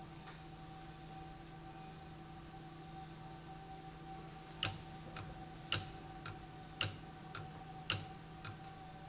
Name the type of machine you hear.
valve